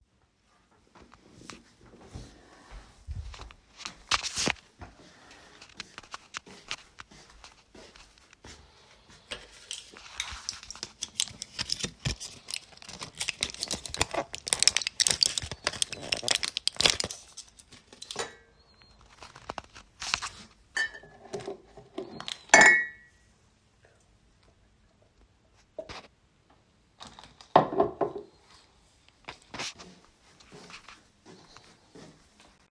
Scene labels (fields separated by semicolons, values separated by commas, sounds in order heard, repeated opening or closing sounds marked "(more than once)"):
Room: kitchen; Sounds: footsteps, microwave, cutlery and dishes